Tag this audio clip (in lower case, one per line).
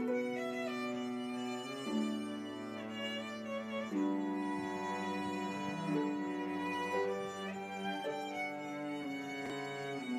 violin
harp
pizzicato
bowed string instrument